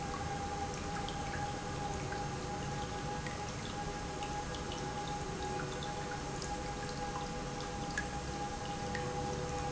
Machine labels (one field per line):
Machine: pump